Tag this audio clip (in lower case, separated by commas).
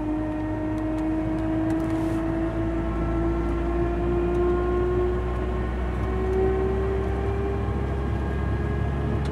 vehicle, car, car passing by, motor vehicle (road)